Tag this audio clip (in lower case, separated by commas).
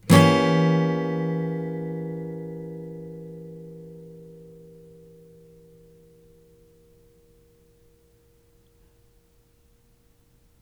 guitar, musical instrument, strum, plucked string instrument, music